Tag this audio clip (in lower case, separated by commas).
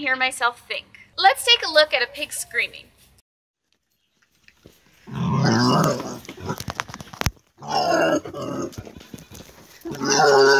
pig, speech, domestic animals, animal